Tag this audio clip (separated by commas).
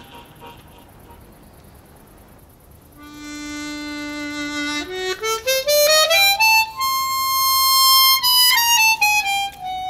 Music, Classical music